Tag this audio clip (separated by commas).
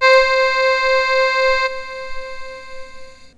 Keyboard (musical), Musical instrument, Music